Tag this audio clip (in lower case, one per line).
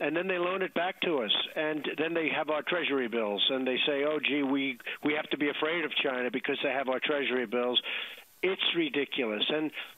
speech